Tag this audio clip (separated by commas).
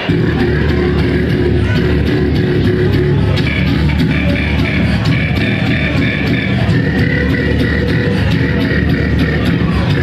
Vocal music, Beatboxing